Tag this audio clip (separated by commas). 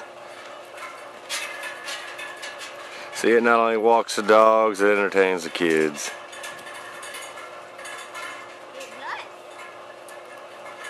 Speech